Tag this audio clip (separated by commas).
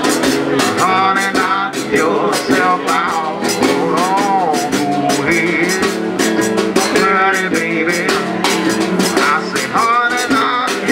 playing washboard